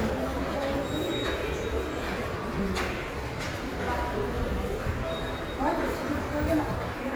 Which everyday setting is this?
subway station